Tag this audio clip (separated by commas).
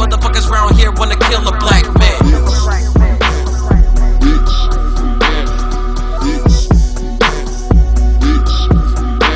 Music, Hip hop music